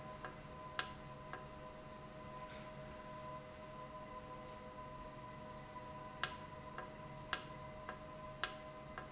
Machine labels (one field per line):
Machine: valve